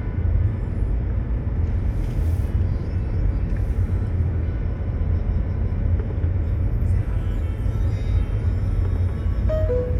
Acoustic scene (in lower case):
car